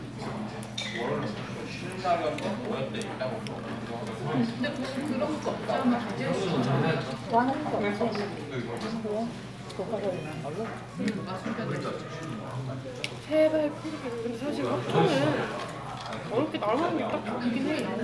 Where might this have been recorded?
in a crowded indoor space